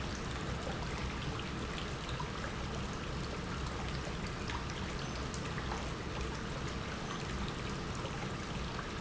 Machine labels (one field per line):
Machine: pump